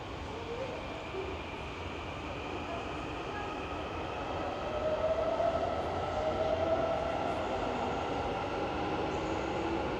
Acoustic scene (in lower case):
subway station